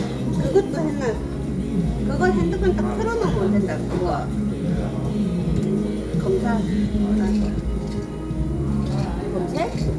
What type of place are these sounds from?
restaurant